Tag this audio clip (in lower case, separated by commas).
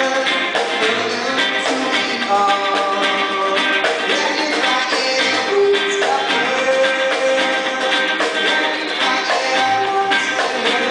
music